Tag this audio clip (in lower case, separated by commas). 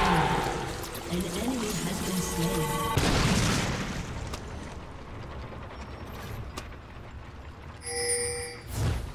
speech, pop